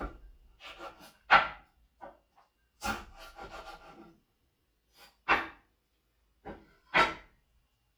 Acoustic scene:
kitchen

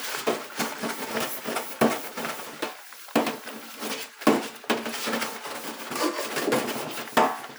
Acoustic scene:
kitchen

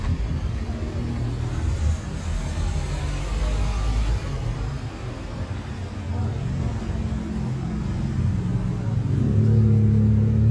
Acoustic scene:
street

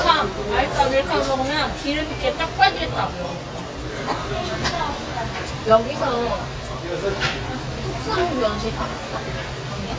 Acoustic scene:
restaurant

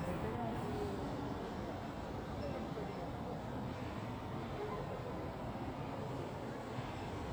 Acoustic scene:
park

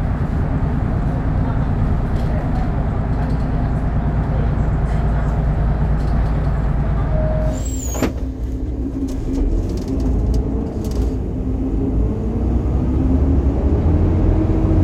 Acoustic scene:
bus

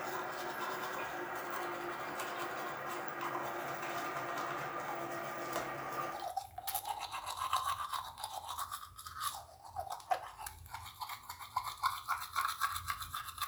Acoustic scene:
restroom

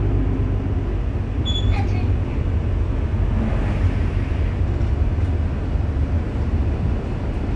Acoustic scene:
bus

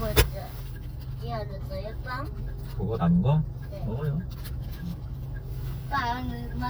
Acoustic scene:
car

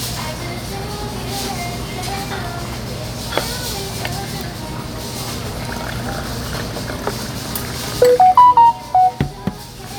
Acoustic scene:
restaurant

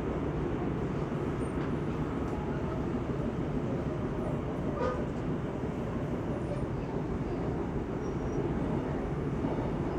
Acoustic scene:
subway train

